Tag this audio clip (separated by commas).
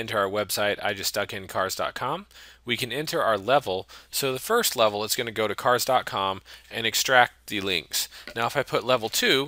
Speech